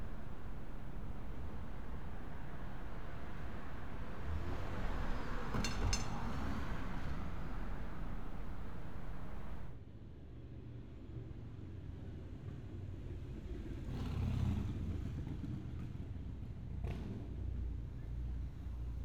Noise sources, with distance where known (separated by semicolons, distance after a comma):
medium-sounding engine